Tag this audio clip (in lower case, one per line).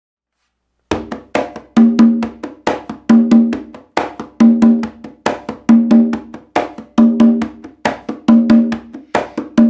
playing congas